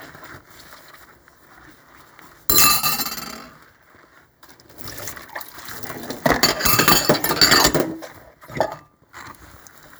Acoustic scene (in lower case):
kitchen